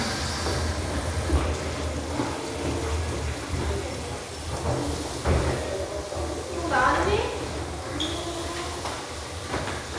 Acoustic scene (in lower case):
restroom